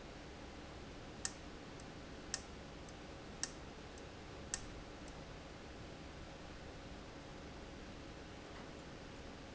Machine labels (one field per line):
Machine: valve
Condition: abnormal